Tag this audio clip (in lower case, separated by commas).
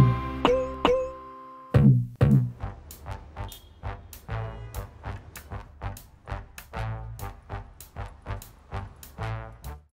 music